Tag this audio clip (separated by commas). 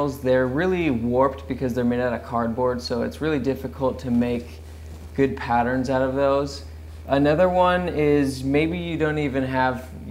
Speech